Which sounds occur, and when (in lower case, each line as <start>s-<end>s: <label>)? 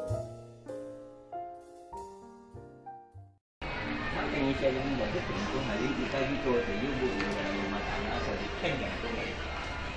0.0s-3.4s: music
3.6s-9.9s: mechanisms
4.1s-9.9s: speech noise
7.1s-7.3s: generic impact sounds
8.6s-8.7s: generic impact sounds